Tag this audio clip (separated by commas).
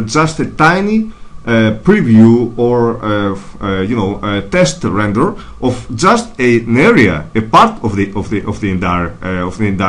Speech